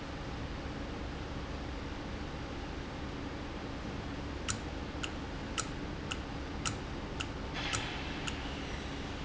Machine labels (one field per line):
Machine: valve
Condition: normal